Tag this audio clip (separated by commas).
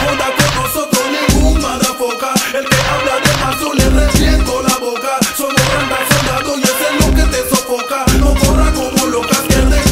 Music